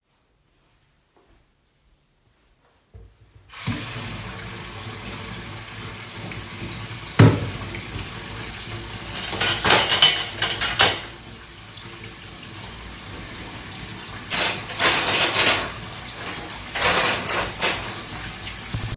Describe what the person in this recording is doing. I used running water at the sink while handling cutlery and dishes. During the scene, I also opened and closed a kitchen drawer.